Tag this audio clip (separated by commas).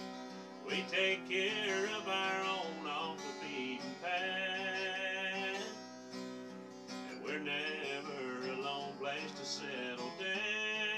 Music, Male singing